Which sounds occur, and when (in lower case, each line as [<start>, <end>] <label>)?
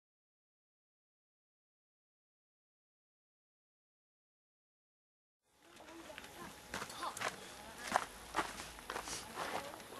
[5.42, 9.95] wind
[5.53, 6.53] child speech
[5.57, 5.93] generic impact sounds
[6.05, 6.35] generic impact sounds
[6.68, 6.88] footsteps
[6.88, 7.16] child speech
[7.14, 7.32] footsteps
[7.53, 7.95] man speaking
[7.81, 8.04] footsteps
[8.29, 8.57] footsteps
[8.87, 9.07] footsteps
[9.01, 9.24] breathing
[9.14, 9.47] man speaking
[9.35, 9.69] footsteps
[9.63, 9.95] child speech
[9.72, 9.85] generic impact sounds